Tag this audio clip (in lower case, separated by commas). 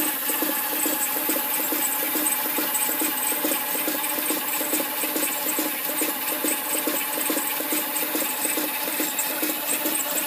medium engine (mid frequency)